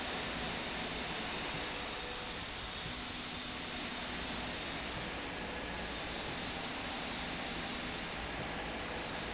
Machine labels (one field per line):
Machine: slide rail